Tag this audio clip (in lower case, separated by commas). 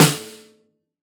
snare drum, percussion, musical instrument, drum, music